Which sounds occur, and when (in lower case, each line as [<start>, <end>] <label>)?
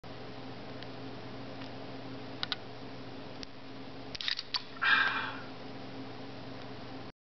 [0.03, 7.12] mechanisms
[0.70, 0.92] generic impact sounds
[1.57, 1.69] generic impact sounds
[2.40, 2.60] generic impact sounds
[3.41, 3.50] single-lens reflex camera
[4.16, 4.61] single-lens reflex camera
[4.79, 5.38] human voice
[5.05, 5.16] generic impact sounds
[6.59, 6.71] generic impact sounds